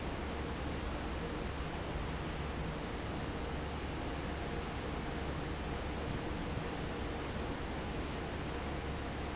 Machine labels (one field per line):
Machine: fan